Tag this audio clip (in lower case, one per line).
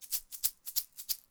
musical instrument
rattle (instrument)
percussion
music